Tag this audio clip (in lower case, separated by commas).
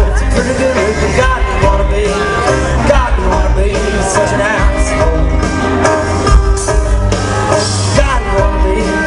music